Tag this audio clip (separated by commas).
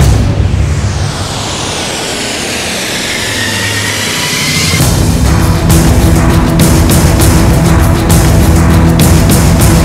Music